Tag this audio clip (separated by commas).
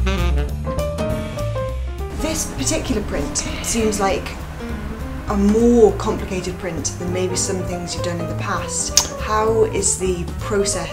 Speech, Music